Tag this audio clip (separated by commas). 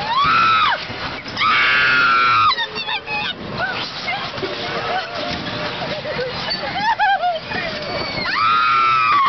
Speech